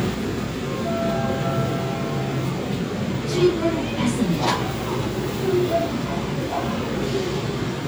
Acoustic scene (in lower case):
subway train